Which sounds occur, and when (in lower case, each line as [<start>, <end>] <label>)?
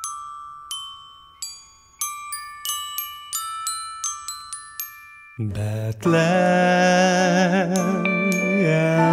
[0.00, 9.12] music
[5.34, 9.12] male singing